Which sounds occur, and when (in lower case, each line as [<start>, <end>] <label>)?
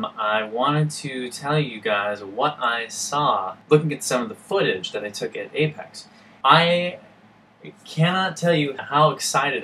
[0.00, 3.48] man speaking
[0.01, 9.63] background noise
[3.59, 6.06] man speaking
[6.33, 6.91] man speaking
[7.48, 9.63] man speaking